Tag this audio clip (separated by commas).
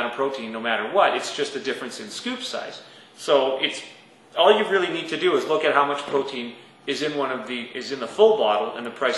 Speech